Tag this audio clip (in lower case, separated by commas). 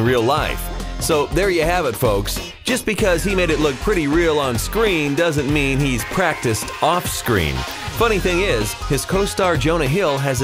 speech, music